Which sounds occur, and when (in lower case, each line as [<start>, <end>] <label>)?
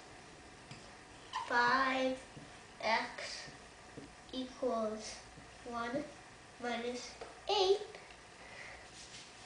[0.00, 9.45] background noise
[0.57, 0.91] generic impact sounds
[1.27, 1.50] squeak
[1.28, 2.14] child speech
[2.79, 3.49] child speech
[3.90, 4.12] generic impact sounds
[4.25, 5.23] child speech
[5.62, 6.15] child speech
[6.58, 7.18] child speech
[7.13, 7.30] generic impact sounds
[7.42, 7.86] child speech
[7.89, 8.20] generic impact sounds
[8.19, 8.96] caw
[8.83, 9.45] footsteps